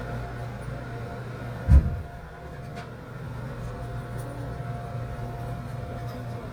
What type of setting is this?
subway train